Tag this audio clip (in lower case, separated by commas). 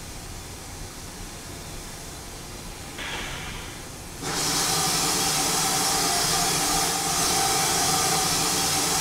hiss